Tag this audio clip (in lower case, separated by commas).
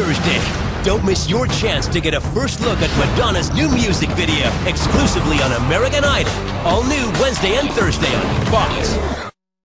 music, speech, exciting music